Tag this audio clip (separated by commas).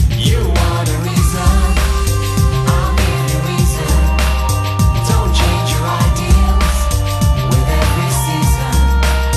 Music, Jingle (music)